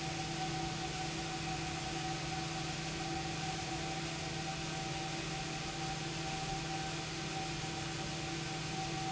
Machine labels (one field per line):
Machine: pump